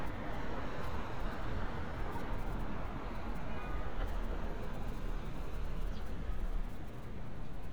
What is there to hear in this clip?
car horn